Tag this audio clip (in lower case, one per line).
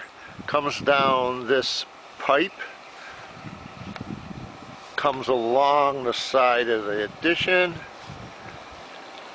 speech